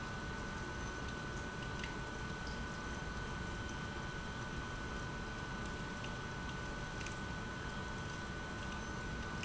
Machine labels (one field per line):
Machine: pump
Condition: abnormal